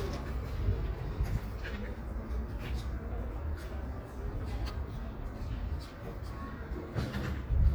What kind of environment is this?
residential area